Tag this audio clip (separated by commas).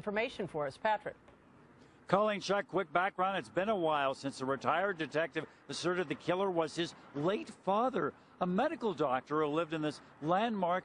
Speech